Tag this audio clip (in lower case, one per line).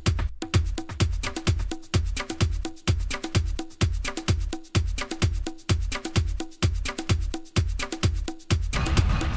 music
sound effect